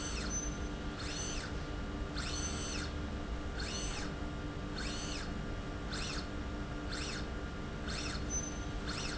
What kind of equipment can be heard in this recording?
slide rail